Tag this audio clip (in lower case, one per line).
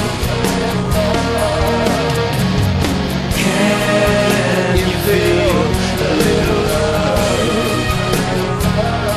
music
heavy metal